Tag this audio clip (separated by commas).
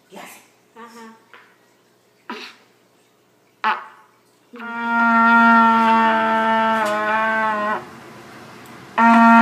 playing cornet